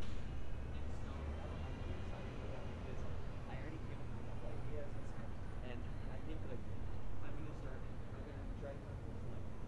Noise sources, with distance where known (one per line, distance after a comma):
person or small group talking